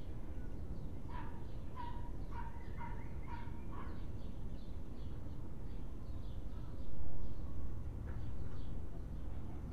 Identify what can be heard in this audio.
dog barking or whining